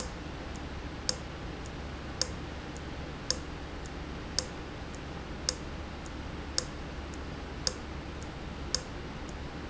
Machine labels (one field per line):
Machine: valve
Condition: abnormal